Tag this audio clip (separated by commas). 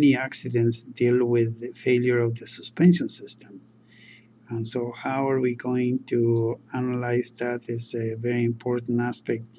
Speech